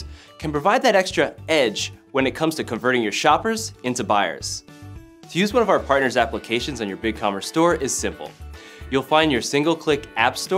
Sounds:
speech, music

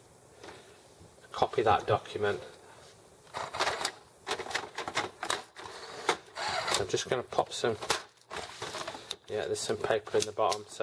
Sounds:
printer, speech

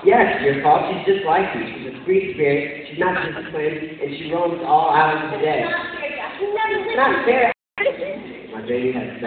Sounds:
inside a large room or hall, speech

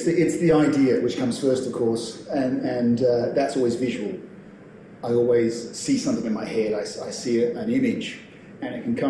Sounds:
speech

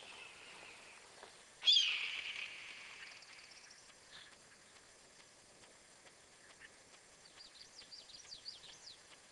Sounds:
bird, bird vocalization

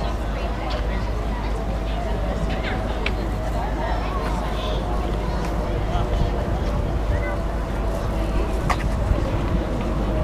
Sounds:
speech

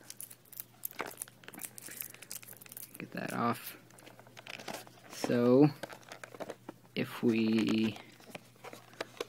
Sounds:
speech, whispering

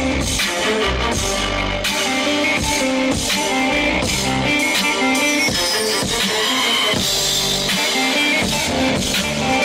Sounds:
musical instrument, drum machine, music

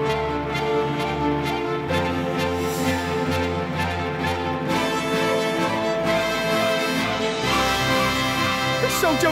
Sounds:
music, speech

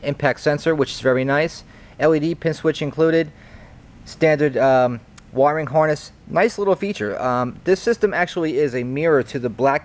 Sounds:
speech

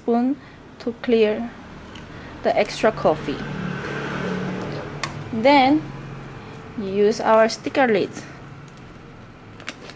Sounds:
speech

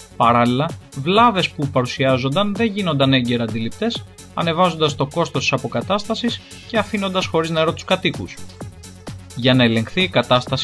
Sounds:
music, speech

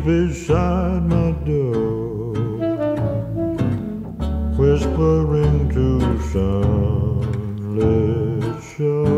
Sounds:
music

